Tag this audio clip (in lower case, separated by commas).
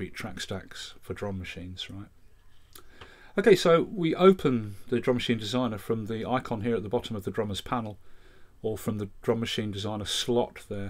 speech